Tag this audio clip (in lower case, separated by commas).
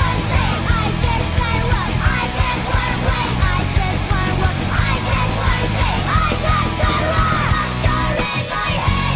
bass drum, rimshot, drum kit, snare drum, percussion, drum